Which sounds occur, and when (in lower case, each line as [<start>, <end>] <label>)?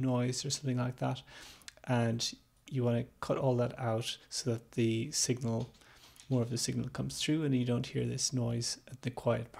[0.01, 9.55] background noise
[0.07, 1.10] man speaking
[1.26, 1.58] breathing
[1.84, 2.20] man speaking
[2.33, 2.35] man speaking
[2.53, 4.15] man speaking
[4.27, 5.65] man speaking
[5.53, 7.01] computer keyboard
[5.74, 6.11] breathing
[6.24, 8.73] man speaking
[8.91, 9.55] man speaking